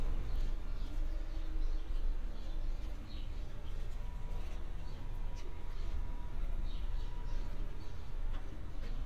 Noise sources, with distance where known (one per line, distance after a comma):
background noise